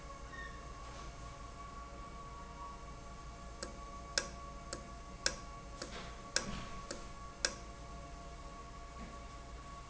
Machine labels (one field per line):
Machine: valve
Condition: normal